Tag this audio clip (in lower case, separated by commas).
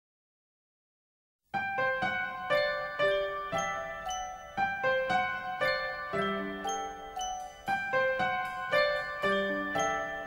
music, glockenspiel